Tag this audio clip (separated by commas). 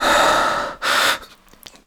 Respiratory sounds, Breathing